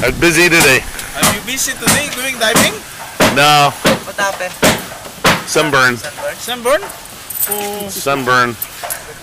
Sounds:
speech

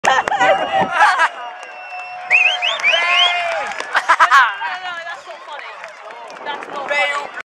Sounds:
speech

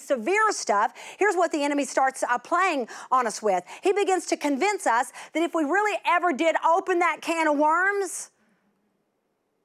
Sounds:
speech

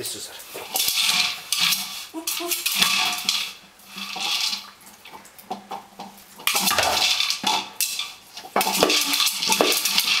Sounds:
speech

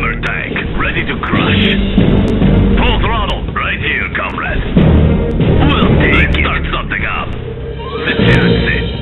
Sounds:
music
speech

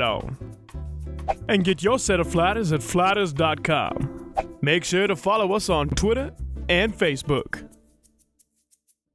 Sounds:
speech
music

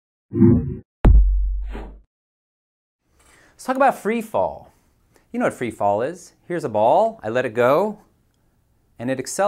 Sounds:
speech

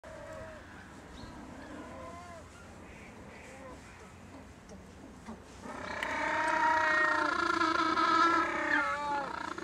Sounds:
penguins braying

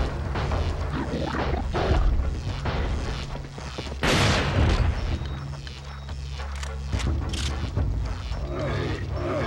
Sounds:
door

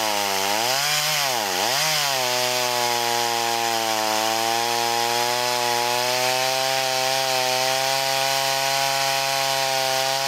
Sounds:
chainsaw
chainsawing trees

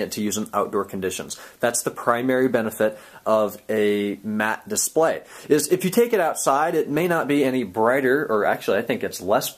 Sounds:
speech

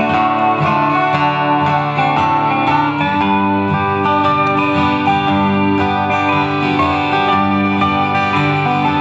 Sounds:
music

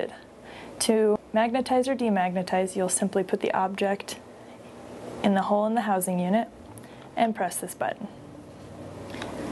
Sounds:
speech

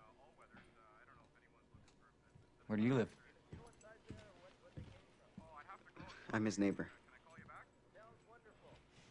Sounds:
speech

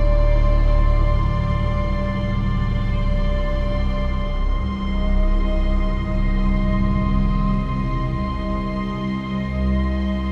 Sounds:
music

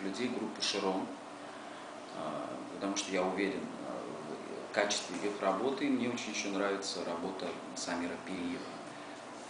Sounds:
speech

